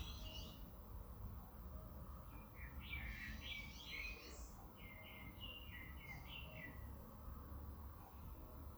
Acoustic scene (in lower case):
park